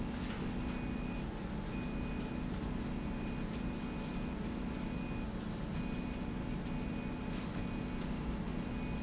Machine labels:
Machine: slide rail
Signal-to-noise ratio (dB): -6 dB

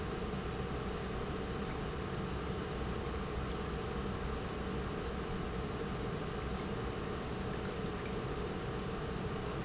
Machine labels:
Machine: pump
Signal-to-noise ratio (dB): -6 dB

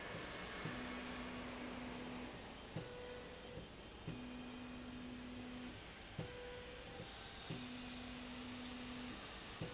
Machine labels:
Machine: slide rail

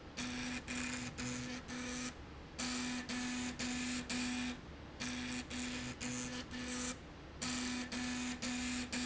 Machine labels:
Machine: slide rail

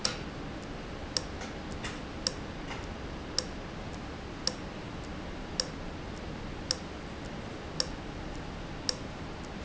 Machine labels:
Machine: valve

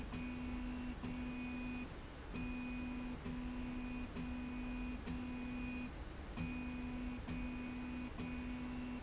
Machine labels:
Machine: slide rail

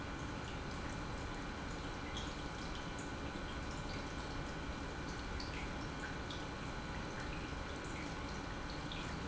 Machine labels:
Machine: pump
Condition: normal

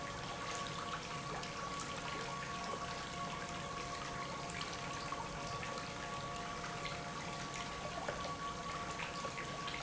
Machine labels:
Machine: pump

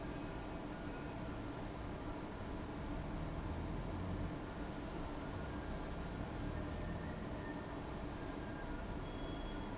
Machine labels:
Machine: fan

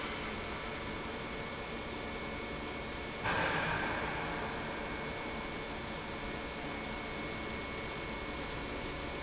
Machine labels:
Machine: pump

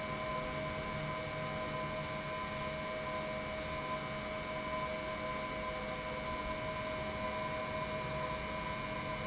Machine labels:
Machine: pump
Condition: normal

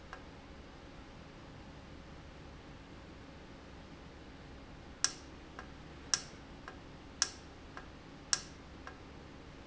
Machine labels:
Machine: valve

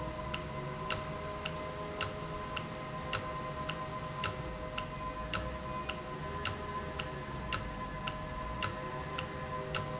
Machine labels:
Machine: valve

